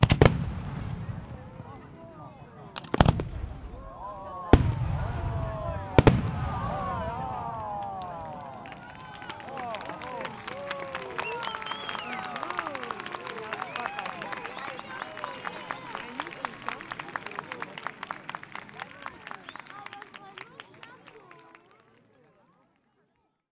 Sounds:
Explosion, Fireworks

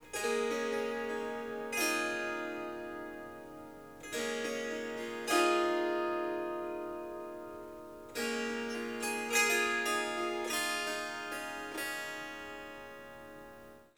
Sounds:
Harp, Music, Musical instrument

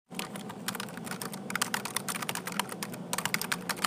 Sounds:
Typing, Domestic sounds

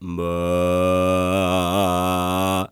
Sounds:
Human voice, Male singing, Singing

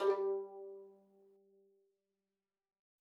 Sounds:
Musical instrument, Music, Bowed string instrument

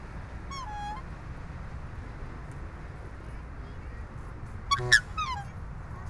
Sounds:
Bird, Wild animals, Animal

